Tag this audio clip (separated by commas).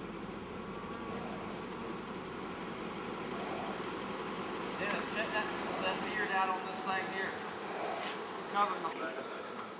Insect, Fly, bee or wasp